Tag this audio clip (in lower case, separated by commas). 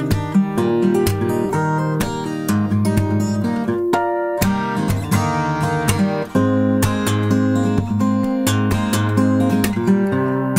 guitar, musical instrument, plucked string instrument, acoustic guitar, music, strum